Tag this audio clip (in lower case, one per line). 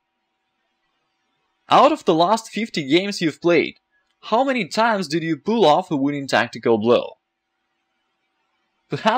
speech